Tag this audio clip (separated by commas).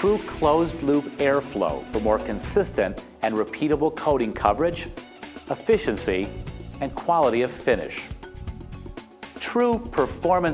Music, Speech